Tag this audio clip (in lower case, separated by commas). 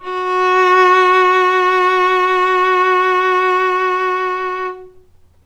music, bowed string instrument, musical instrument